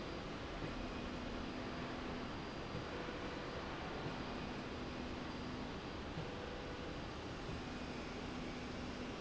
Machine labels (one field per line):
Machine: slide rail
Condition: normal